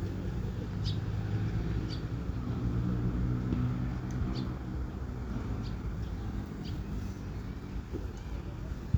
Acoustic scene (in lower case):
residential area